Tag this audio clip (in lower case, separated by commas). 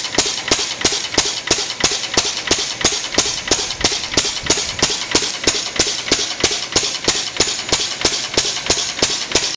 medium engine (mid frequency), idling, engine